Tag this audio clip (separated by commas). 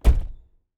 Car, Motor vehicle (road), Slam, Domestic sounds, Vehicle, Door